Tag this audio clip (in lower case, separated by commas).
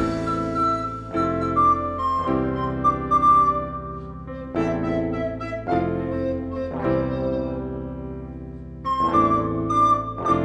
music, independent music, flute, happy music